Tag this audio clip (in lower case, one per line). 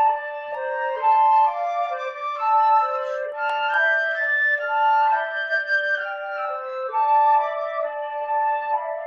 music
flute